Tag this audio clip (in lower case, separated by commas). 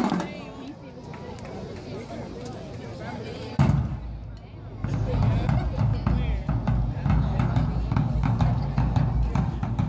people marching